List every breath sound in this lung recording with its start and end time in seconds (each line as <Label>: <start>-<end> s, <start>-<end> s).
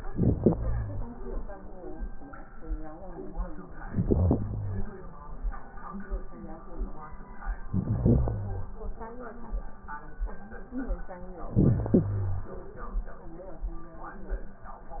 Inhalation: 0.00-1.08 s, 3.86-4.94 s, 7.69-8.77 s, 11.42-12.50 s
Crackles: 0.00-1.08 s, 3.86-4.94 s, 7.69-8.77 s, 11.42-12.50 s